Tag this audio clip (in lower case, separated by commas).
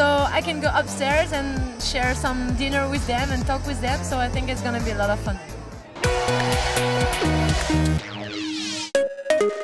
speech, music